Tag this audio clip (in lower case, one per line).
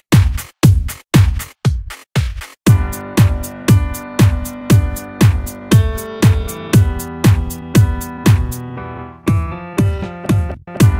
music
dubstep
electronic music